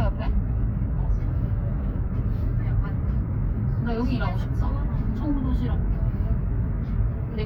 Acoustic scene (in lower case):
car